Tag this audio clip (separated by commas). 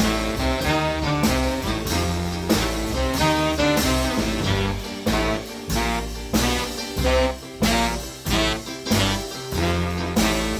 Jazz, Music